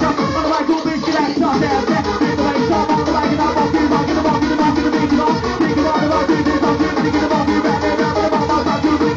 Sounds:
Music

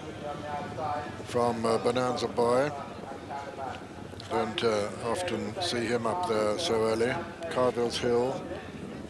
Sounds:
Clip-clop, Speech

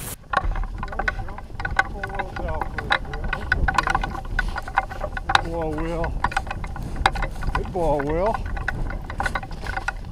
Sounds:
Speech

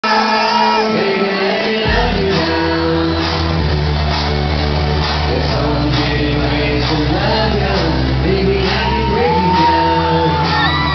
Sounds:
Music, Singing

